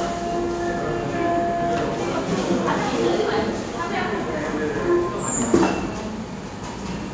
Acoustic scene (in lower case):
cafe